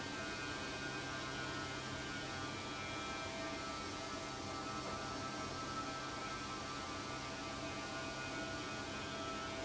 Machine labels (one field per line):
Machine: fan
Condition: abnormal